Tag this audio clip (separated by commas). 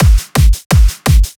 Music, Drum, Musical instrument, Bass drum, Snare drum, Percussion